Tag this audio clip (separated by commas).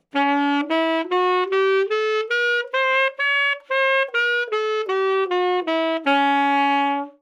Music, woodwind instrument, Musical instrument